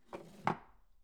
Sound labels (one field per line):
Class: drawer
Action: closing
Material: wooden